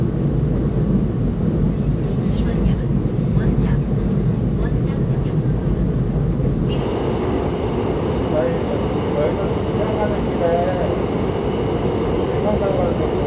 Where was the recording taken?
on a subway train